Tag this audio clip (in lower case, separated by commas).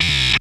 music, musical instrument